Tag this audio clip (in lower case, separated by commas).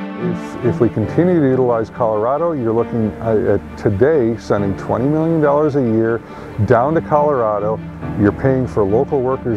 music, speech